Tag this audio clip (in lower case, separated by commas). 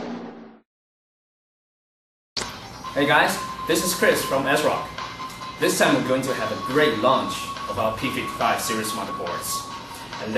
sound effect